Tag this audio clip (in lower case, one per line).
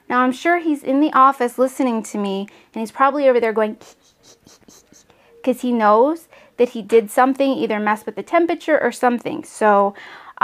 inside a small room
speech